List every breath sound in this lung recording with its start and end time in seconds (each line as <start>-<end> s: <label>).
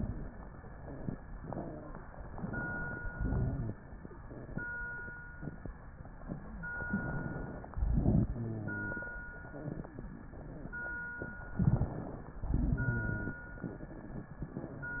6.76-7.70 s: inhalation
7.70-9.12 s: exhalation
7.72-8.26 s: crackles
8.34-8.93 s: wheeze
11.54-11.94 s: crackles
11.54-12.48 s: inhalation
12.48-13.40 s: exhalation
12.48-13.40 s: wheeze